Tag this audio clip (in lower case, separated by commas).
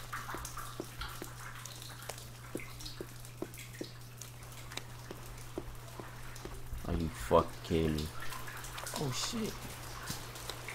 speech